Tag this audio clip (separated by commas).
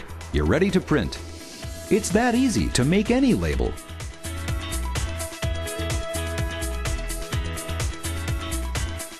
Speech, Music